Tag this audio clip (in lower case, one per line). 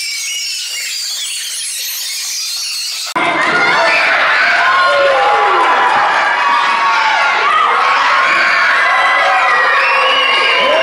inside a large room or hall
child speech
inside a public space